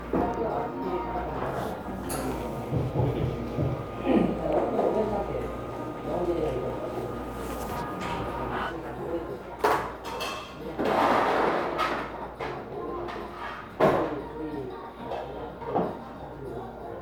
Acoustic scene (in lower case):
cafe